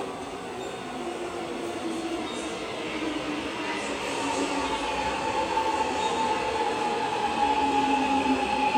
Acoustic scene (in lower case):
subway station